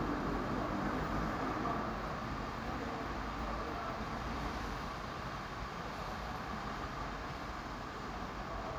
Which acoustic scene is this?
residential area